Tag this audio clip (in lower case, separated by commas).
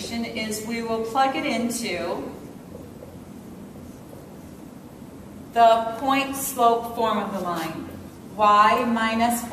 rustle, speech